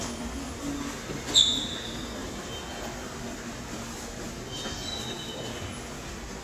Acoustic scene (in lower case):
subway station